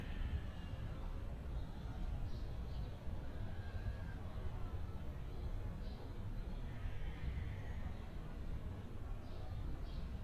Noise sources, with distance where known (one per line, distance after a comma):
person or small group shouting, far